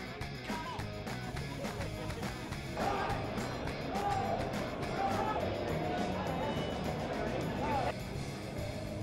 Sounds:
music, speech

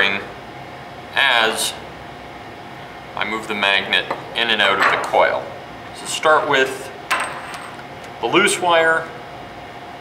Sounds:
inside a small room, speech

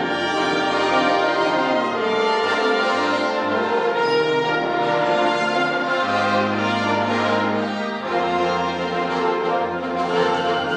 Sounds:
music

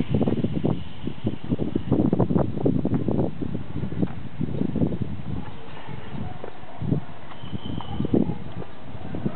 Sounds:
speech

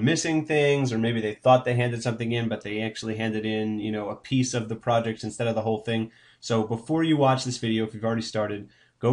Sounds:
speech

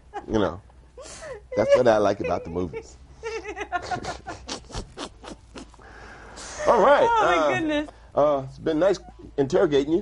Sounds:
speech, inside a small room

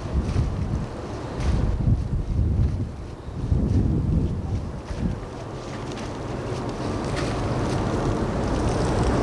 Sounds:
vehicle, ship, water vehicle

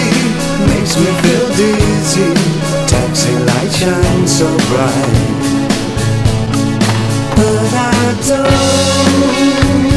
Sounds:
music

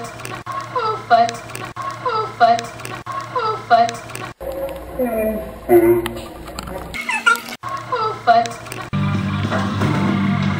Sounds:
music, speech, inside a small room

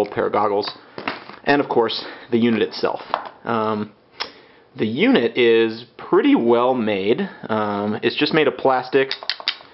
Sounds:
speech

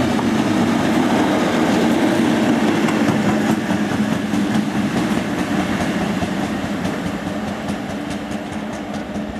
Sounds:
vehicle, rail transport, train, outside, urban or man-made

